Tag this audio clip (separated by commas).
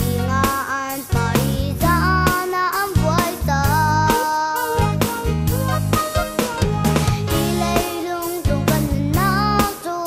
Music